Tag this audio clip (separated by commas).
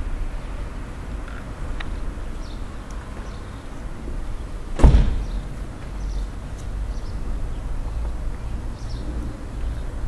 magpie calling